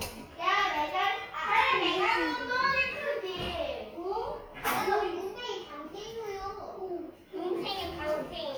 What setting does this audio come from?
crowded indoor space